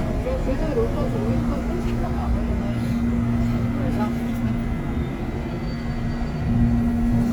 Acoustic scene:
subway train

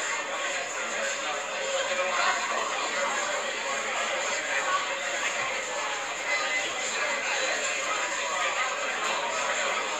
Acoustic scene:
crowded indoor space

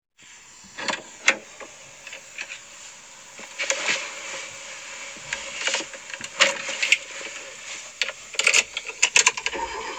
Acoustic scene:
car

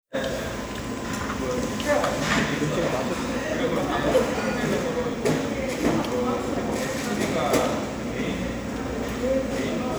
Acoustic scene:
restaurant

